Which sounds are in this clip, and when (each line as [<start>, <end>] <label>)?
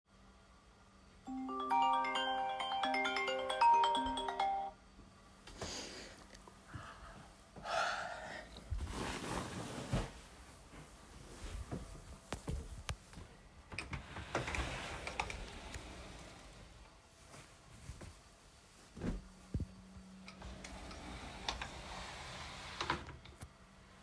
[1.08, 4.89] phone ringing
[13.72, 23.61] wardrobe or drawer